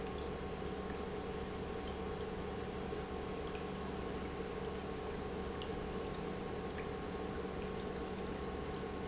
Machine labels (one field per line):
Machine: pump